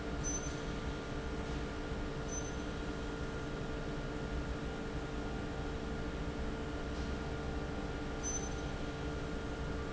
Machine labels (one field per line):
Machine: fan